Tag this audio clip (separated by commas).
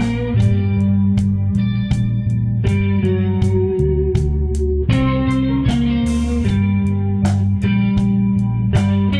Theme music, Music